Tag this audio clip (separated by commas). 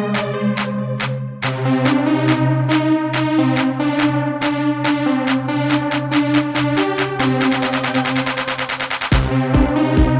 Techno, Electronic music, Music